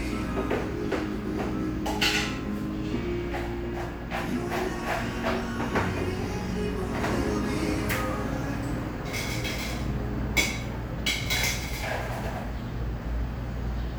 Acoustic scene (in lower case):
cafe